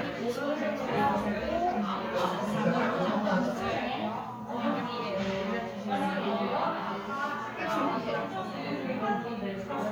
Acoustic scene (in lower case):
crowded indoor space